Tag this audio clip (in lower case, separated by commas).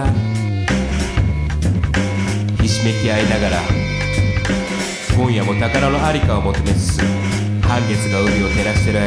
music, speech